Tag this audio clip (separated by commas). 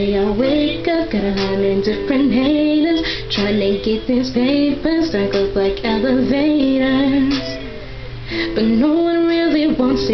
Female singing, Music